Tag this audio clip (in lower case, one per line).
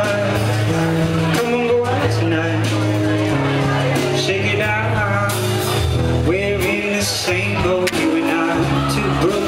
speech
crowd
music
singing